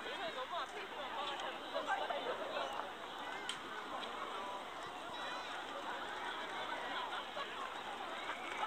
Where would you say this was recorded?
in a park